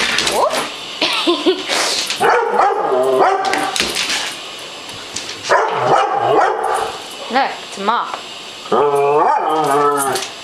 Woman speaking and laughing while dog barks loudly and claws make clicking noises on the floor